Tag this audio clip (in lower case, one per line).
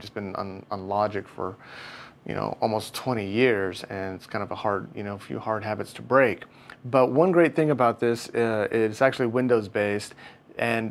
speech